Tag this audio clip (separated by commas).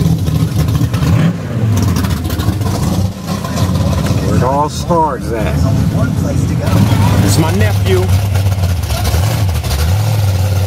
Vehicle, Speech